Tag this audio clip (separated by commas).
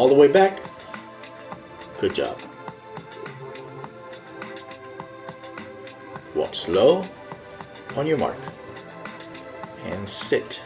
Music, Speech